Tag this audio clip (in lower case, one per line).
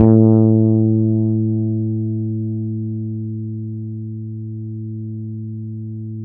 bass guitar
music
musical instrument
plucked string instrument
guitar